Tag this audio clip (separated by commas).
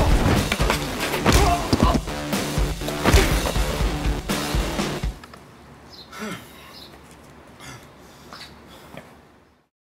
Music, Walk